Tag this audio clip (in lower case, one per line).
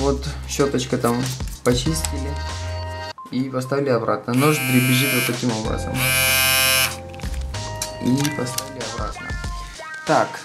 electric shaver